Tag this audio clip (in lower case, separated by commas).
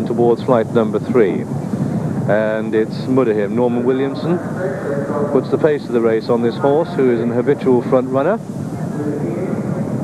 horse, animal